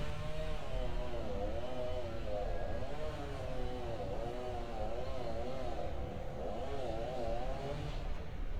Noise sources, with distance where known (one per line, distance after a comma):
chainsaw